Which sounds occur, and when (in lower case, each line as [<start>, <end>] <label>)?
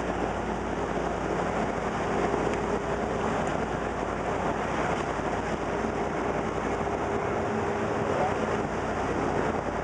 [0.00, 9.83] motorboat
[0.00, 9.83] water
[2.44, 2.62] generic impact sounds
[7.97, 8.32] generic impact sounds